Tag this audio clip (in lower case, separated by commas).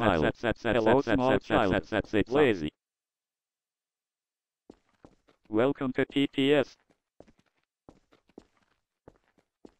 speech synthesizer, speech